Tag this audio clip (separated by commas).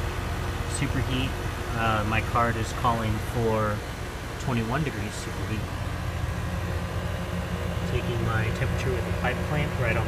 air conditioning noise